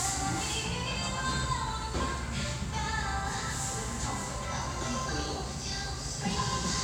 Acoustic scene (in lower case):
restaurant